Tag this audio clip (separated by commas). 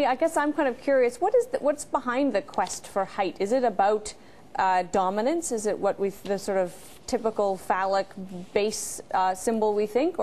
Speech